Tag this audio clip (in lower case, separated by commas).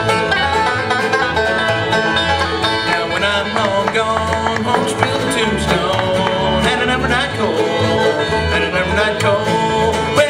music, banjo, bluegrass, singing, country, guitar